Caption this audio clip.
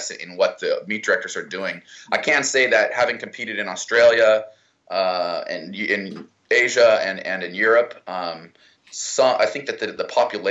A young man is speaking